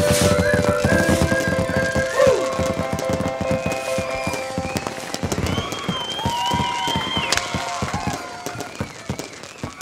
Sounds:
music

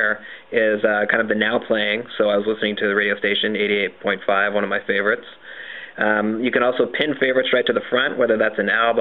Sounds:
speech

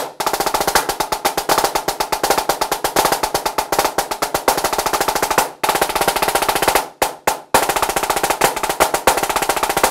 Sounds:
playing snare drum

